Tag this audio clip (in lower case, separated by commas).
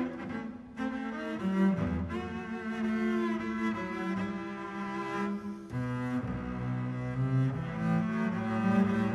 cello, bowed string instrument, double bass